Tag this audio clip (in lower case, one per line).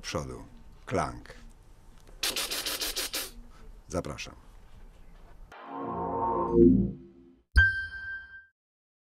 speech
music